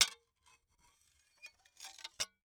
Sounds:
Glass

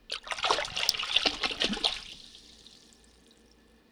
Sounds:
Liquid, splatter

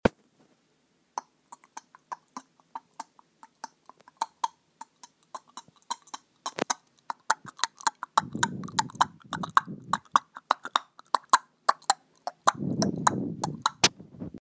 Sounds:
Animal

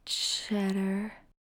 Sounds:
woman speaking, Speech, Human voice

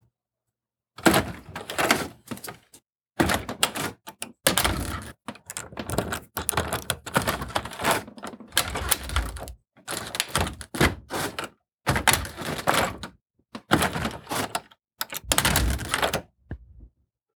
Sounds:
Thump

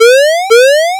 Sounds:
Alarm, Siren

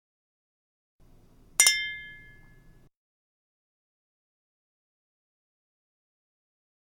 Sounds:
Glass, clink

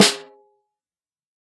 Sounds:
Music, Musical instrument, Drum, Percussion, Snare drum

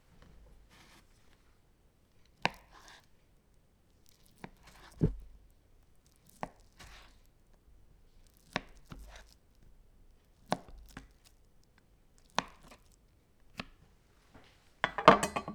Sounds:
Domestic sounds

